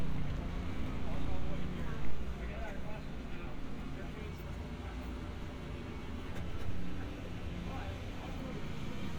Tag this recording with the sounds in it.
engine of unclear size, person or small group talking